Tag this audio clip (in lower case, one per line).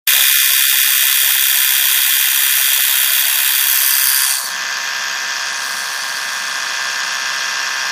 home sounds